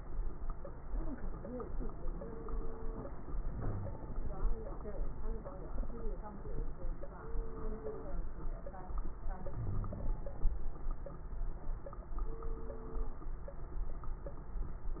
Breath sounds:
Wheeze: 3.50-4.03 s, 9.61-10.20 s

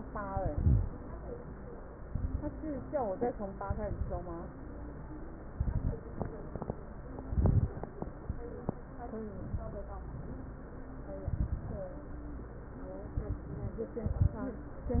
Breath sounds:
Exhalation: 0.26-0.87 s, 2.05-2.54 s, 3.63-4.42 s, 5.55-6.04 s, 7.26-7.75 s, 11.25-11.87 s, 13.15-13.53 s, 14.06-14.44 s
Crackles: 0.26-0.87 s, 2.05-2.54 s, 3.63-4.42 s, 5.55-6.04 s, 7.26-7.75 s, 11.25-11.87 s, 13.15-13.53 s, 14.06-14.44 s

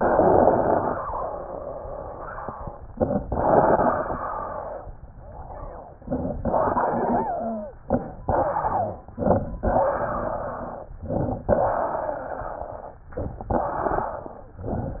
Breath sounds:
Inhalation: 0.00-1.03 s, 2.89-3.26 s, 6.45-7.76 s, 7.88-8.23 s, 9.15-9.64 s, 11.03-11.52 s, 13.11-13.53 s
Exhalation: 1.03-3.00 s, 3.32-4.88 s, 8.31-9.12 s, 9.64-10.93 s, 11.56-13.02 s, 13.57-14.68 s
Wheeze: 1.06-2.80 s, 3.30-4.77 s, 6.56-7.79 s, 7.04-7.76 s, 8.25-9.00 s, 9.62-10.88 s, 11.52-12.78 s, 13.55-14.60 s
Crackles: 2.90-3.24 s, 5.98-6.39 s, 7.89-8.24 s, 9.15-9.64 s, 11.03-11.52 s, 13.11-13.53 s

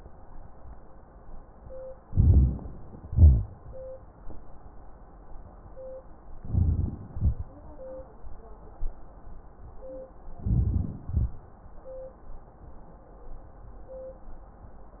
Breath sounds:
Inhalation: 2.06-2.62 s, 6.38-6.93 s, 10.43-10.94 s
Exhalation: 3.11-3.52 s, 7.16-7.56 s, 11.16-11.39 s
Wheeze: 3.11-3.52 s
Crackles: 2.06-2.62 s, 10.43-10.94 s

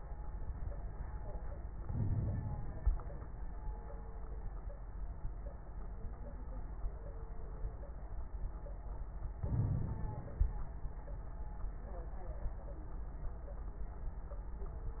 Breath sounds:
Inhalation: 1.82-2.85 s, 9.36-10.39 s
Crackles: 1.82-2.85 s, 9.36-10.39 s

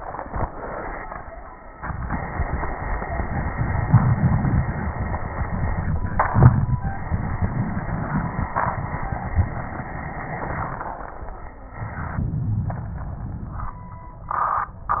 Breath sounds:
Inhalation: 11.84-13.77 s

